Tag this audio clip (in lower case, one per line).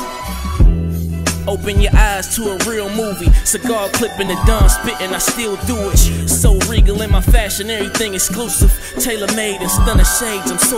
music